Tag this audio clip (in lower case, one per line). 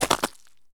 walk